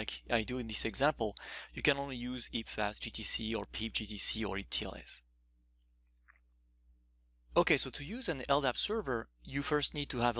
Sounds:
speech

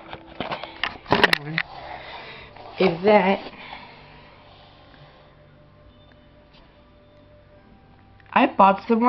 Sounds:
speech

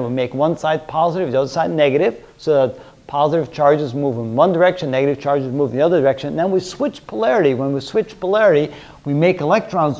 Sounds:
speech

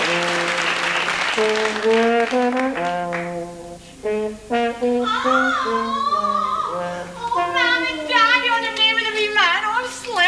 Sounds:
trombone, brass instrument

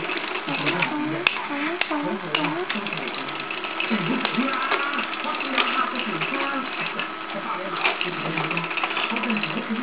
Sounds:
mechanisms, gears, pawl

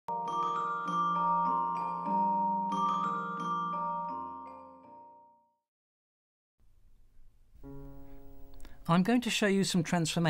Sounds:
glockenspiel, mallet percussion, xylophone

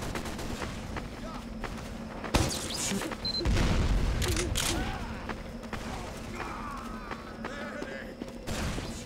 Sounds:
speech

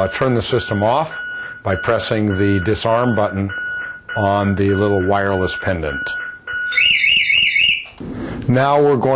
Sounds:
alarm, speech

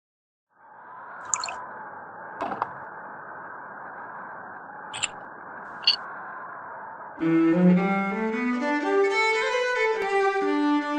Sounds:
violin, music

